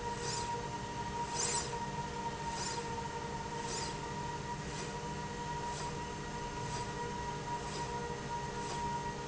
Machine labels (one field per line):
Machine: slide rail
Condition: normal